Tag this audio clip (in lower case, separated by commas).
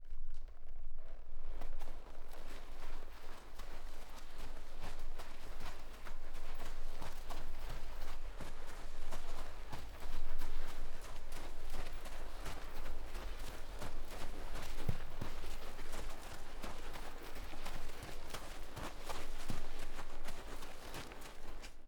animal, livestock